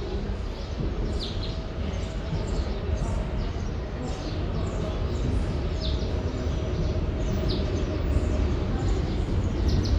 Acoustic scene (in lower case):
subway station